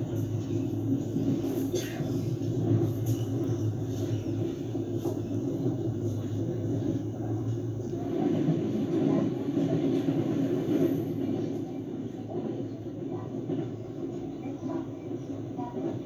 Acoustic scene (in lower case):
subway train